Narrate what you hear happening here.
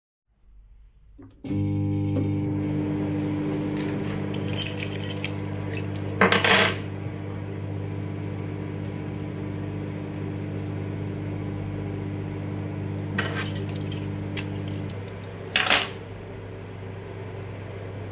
I came to the kitchen, started a microwave and placed my keys on the table